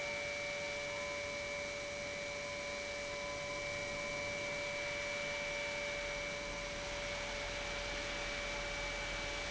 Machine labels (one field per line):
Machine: pump